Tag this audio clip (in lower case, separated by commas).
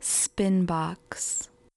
woman speaking, human voice, speech